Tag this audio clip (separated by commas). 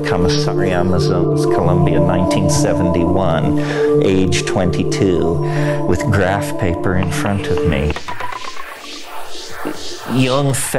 Music, Speech, Electronica, Electronic music